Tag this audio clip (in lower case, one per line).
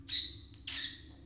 squeak
wild animals
animal